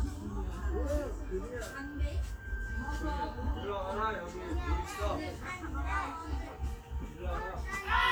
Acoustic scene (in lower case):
park